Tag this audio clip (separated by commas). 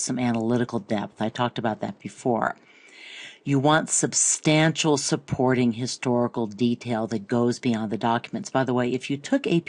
Speech